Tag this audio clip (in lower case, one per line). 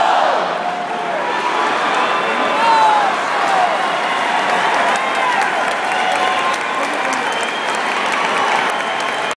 speech